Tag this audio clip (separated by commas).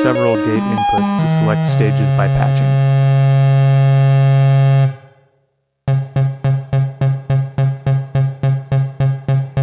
Speech, Music